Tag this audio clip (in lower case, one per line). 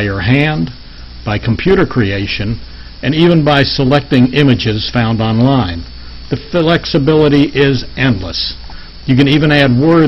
speech